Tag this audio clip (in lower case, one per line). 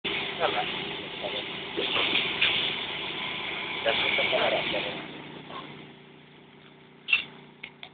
speech
vehicle
medium engine (mid frequency)
engine